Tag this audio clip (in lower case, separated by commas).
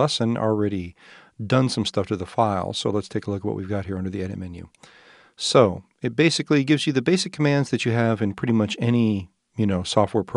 speech